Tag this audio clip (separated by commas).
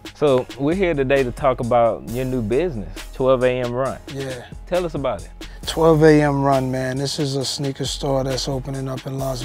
Speech, Music